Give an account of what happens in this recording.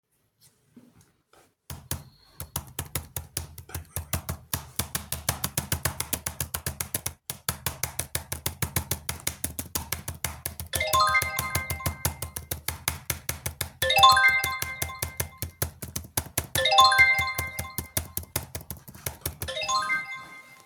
I type on my keyboard then trigger phone notification